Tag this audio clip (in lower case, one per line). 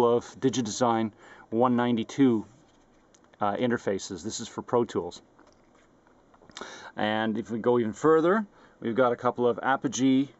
speech